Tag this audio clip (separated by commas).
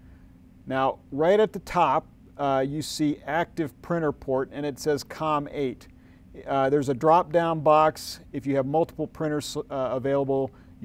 Speech